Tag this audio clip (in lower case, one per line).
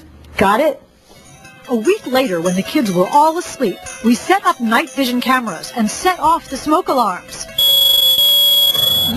smoke alarm
speech
inside a small room
music